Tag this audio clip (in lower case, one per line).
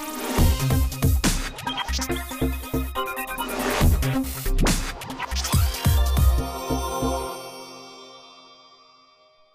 music